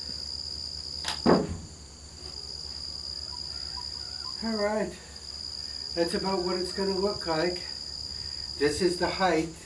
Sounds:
speech

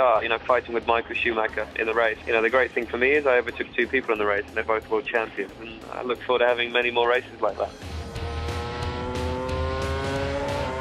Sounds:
speech, music

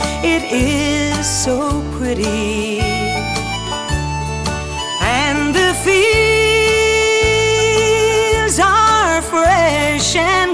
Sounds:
country, singing

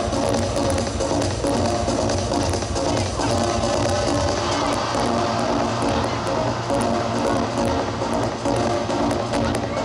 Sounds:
sound effect, music

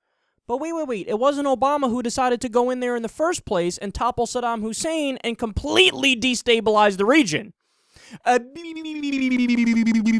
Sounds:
speech, inside a small room

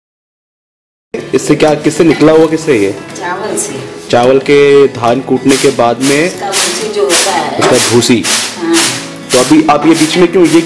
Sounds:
speech, music

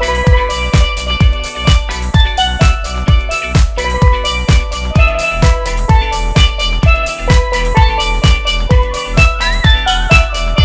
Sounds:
playing steelpan

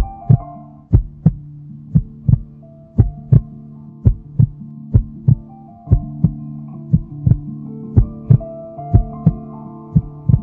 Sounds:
sad music, background music, music

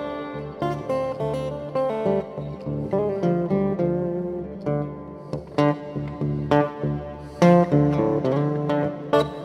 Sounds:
musical instrument, guitar, strum, plucked string instrument, acoustic guitar, music

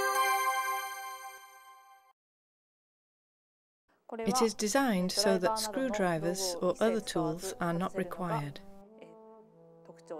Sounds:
music, trombone, speech

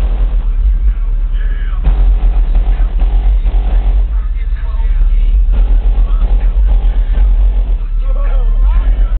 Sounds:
speech, music, dance music

